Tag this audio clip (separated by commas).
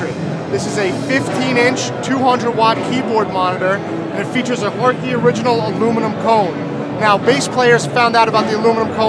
Music, Speech